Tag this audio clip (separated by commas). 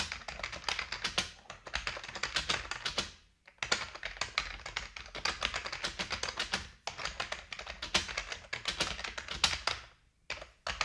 Typing, typing on computer keyboard, Computer keyboard